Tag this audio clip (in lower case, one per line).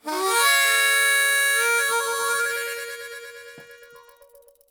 harmonica
music
musical instrument